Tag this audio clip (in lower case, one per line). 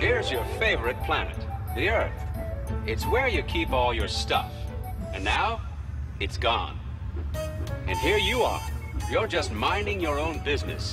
speech
music